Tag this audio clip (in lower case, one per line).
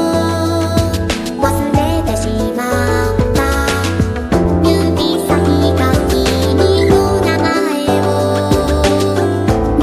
music
theme music